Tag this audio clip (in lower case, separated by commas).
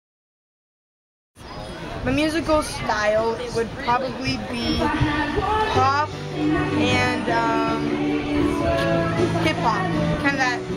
music, speech